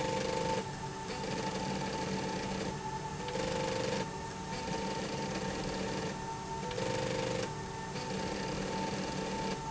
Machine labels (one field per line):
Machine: slide rail